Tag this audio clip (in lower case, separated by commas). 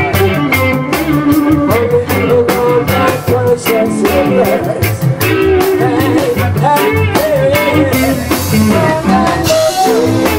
guitar, bass guitar, plucked string instrument, music, musical instrument